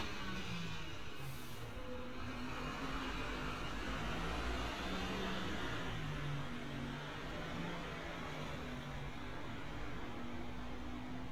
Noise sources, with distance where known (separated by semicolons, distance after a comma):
large-sounding engine, near